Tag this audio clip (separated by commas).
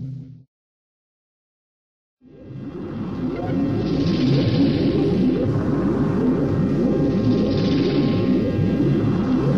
Sound effect